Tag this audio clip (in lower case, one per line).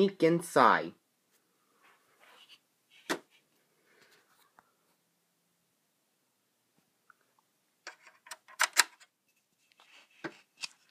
speech